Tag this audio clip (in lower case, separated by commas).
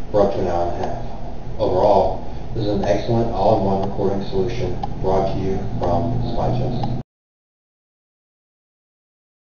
speech, tick